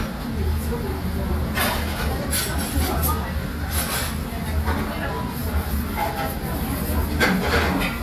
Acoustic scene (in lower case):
restaurant